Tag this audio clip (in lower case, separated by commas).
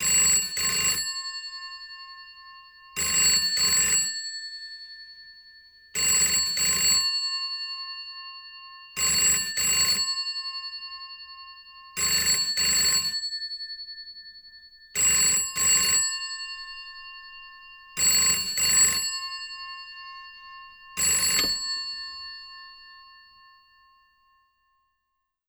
alarm, telephone